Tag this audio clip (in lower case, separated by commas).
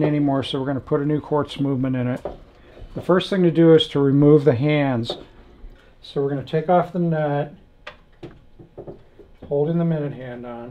speech